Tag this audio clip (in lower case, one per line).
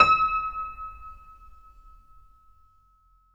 keyboard (musical)
piano
musical instrument
music